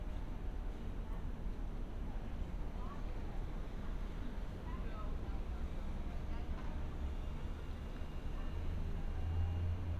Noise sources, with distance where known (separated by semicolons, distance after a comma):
person or small group talking, far